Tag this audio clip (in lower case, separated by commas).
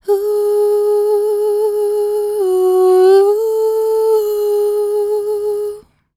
human voice, singing, female singing